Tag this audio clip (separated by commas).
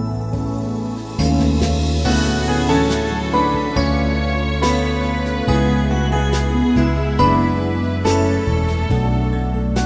cell phone buzzing